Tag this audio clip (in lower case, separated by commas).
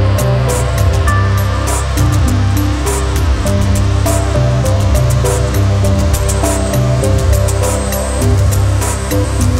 white noise